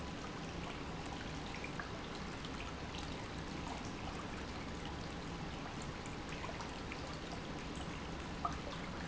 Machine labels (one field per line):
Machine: pump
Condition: normal